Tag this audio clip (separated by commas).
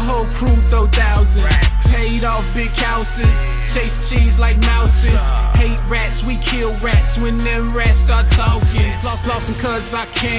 Music, Song